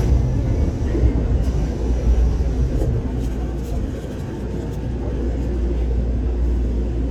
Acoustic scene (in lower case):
subway train